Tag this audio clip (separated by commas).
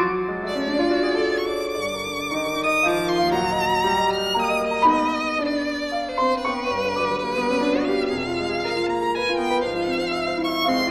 Bowed string instrument, Violin, Music